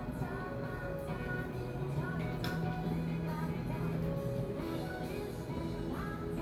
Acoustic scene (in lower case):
cafe